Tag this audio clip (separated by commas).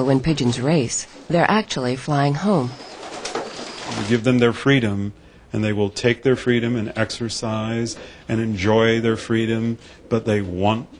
Speech, Bird, inside a small room, dove